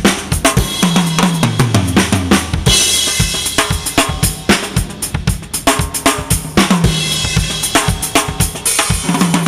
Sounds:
drum kit, percussion, snare drum, drum, rimshot, bass drum

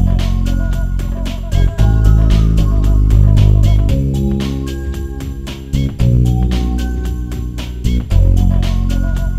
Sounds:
music, video game music

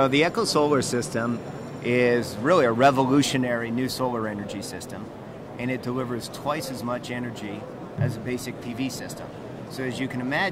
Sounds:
speech

